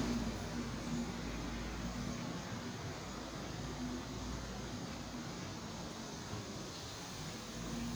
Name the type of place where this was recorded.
park